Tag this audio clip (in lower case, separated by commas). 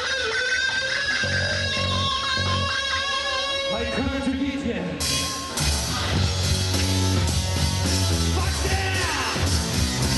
psychedelic rock, bass guitar, percussion, rock music, music, guitar, speech